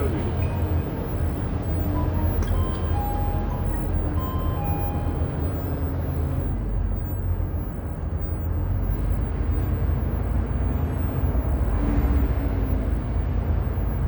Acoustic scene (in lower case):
bus